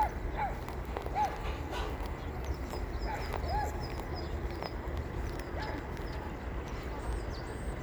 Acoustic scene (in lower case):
park